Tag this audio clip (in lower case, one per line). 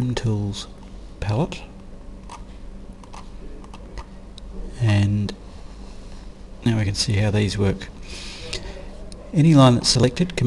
speech